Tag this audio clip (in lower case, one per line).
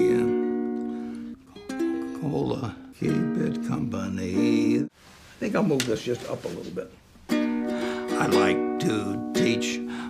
playing ukulele